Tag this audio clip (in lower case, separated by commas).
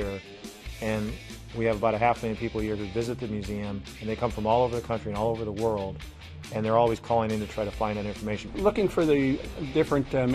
rock and roll, roll, speech, music